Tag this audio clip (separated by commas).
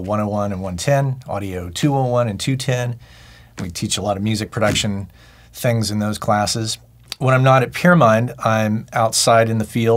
Speech